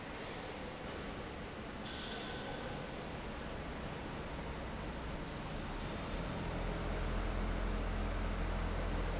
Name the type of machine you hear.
fan